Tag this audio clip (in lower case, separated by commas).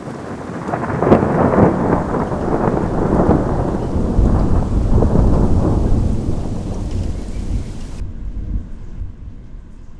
thunder, thunderstorm